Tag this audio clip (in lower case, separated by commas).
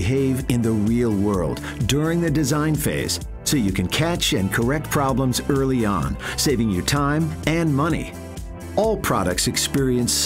music, speech